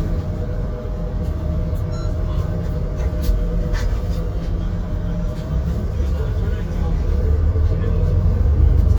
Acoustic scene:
bus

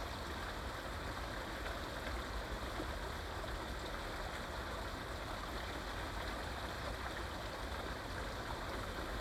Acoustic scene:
park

